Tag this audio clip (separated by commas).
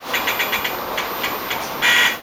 Subway, Rail transport, Vehicle